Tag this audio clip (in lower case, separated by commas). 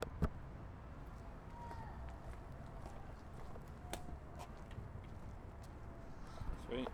footsteps